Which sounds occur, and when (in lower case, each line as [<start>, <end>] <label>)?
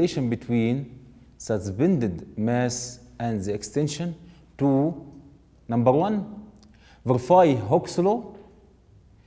[0.00, 0.83] man speaking
[0.00, 9.25] background noise
[1.35, 2.92] man speaking
[3.14, 4.07] man speaking
[4.17, 4.46] breathing
[4.53, 5.02] man speaking
[5.64, 6.28] man speaking
[6.62, 6.98] breathing
[7.04, 8.23] man speaking
[9.12, 9.25] breathing